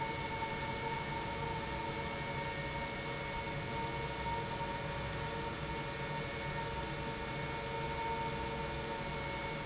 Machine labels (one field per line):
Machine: pump